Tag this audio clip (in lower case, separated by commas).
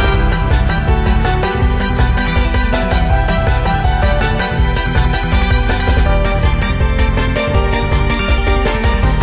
music